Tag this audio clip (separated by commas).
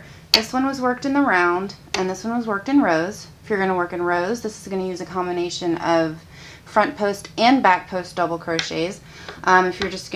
Speech